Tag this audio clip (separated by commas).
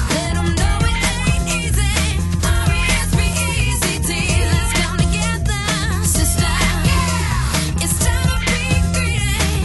Disco, Music, Pop music